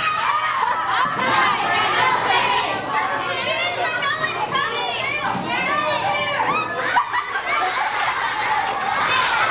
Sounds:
speech

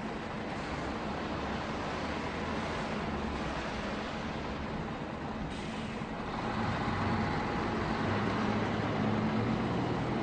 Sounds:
car, vehicle

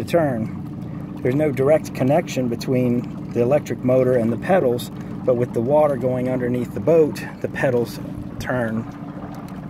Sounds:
speech, boat, vehicle

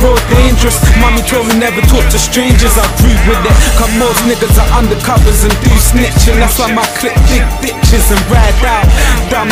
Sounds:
rhythm and blues, dance music, background music, music

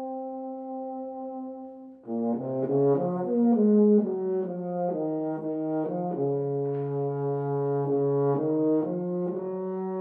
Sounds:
brass instrument

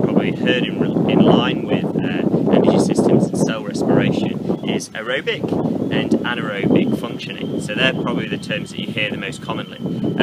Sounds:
outside, rural or natural, speech

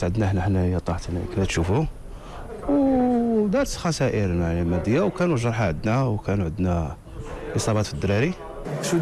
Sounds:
speech

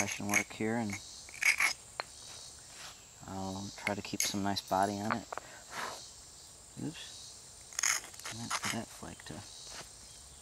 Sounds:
speech

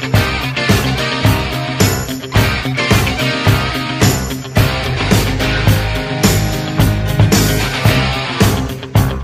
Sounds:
music

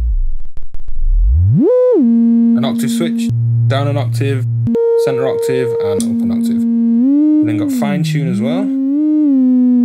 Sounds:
speech, synthesizer

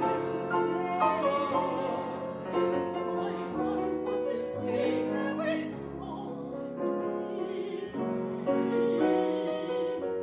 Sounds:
tender music, music

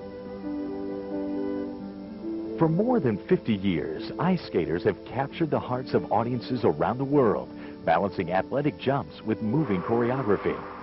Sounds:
music, speech

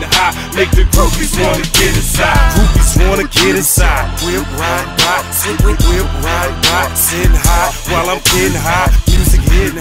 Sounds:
music

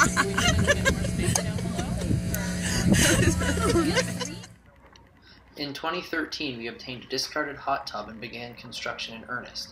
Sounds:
speech, sailboat

